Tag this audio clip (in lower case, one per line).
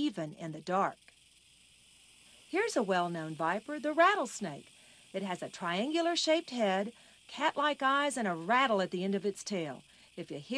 speech
snake
animal